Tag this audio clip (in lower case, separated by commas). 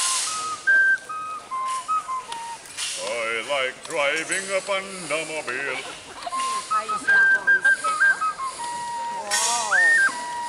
wind instrument, flute